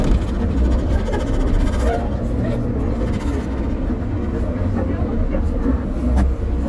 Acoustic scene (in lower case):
bus